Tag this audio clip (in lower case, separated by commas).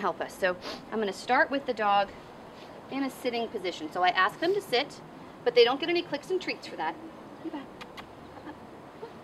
speech